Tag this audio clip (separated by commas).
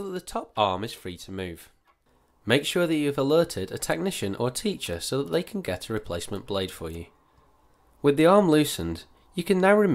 Speech